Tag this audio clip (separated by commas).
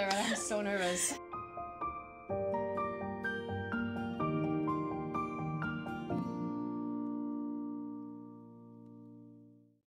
Speech, Music